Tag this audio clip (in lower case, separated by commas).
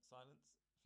human voice, speech